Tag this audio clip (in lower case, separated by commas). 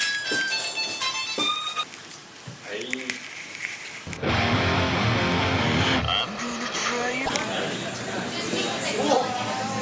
music, speech, musical instrument